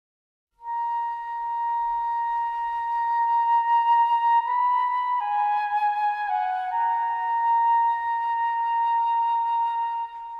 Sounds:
Flute, Music

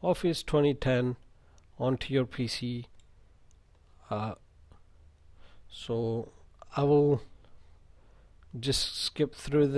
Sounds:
Speech

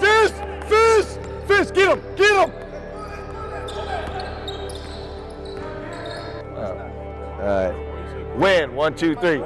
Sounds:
inside a large room or hall, Music, Speech

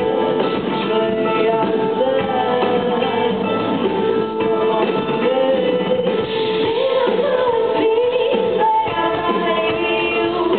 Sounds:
Music

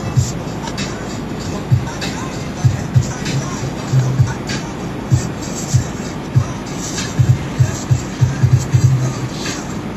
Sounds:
Music, Wind noise (microphone)

